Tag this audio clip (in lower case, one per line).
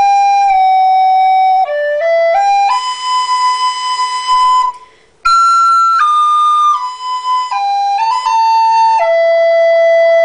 wind instrument
flute